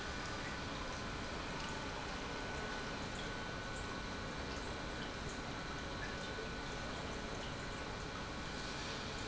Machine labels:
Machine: pump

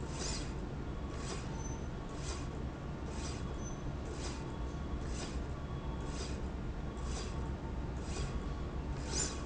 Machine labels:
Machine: slide rail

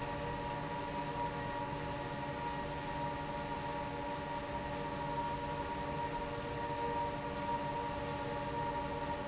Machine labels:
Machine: fan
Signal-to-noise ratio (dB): -6 dB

